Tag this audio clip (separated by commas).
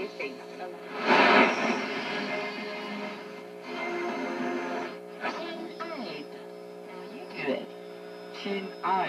Speech, Radio